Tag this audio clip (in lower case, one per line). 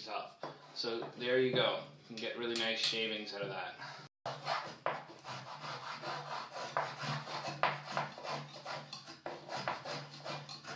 speech